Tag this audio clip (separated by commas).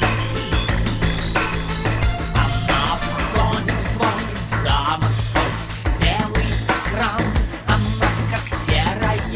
Music